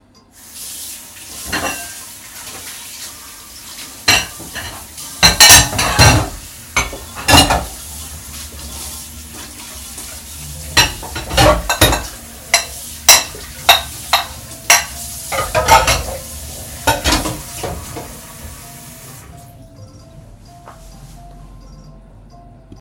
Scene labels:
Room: kitchen; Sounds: phone ringing, running water, cutlery and dishes

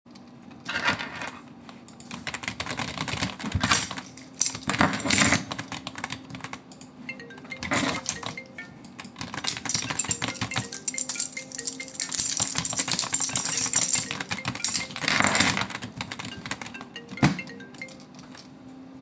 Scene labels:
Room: office; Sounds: keys, keyboard typing, phone ringing

